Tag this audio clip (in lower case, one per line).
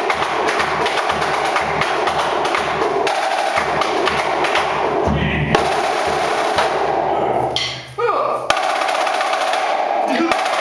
music
snare drum
musical instrument
speech
drum